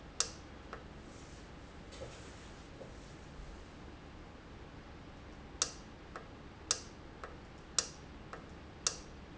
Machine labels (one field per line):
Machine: valve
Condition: normal